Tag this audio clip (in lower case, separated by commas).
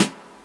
percussion, drum, snare drum, musical instrument, music